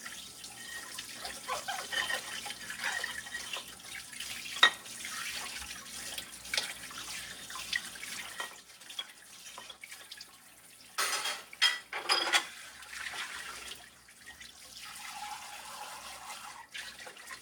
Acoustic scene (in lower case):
kitchen